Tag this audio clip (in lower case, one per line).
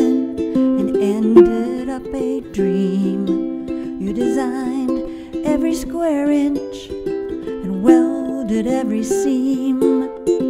music